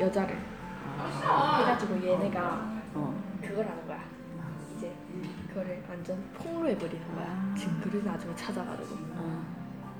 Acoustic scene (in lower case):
crowded indoor space